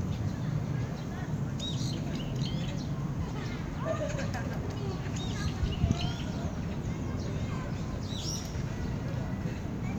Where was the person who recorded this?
in a park